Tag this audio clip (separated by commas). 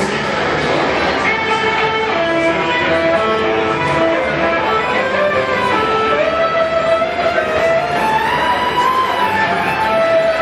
Musical instrument, Violin, Music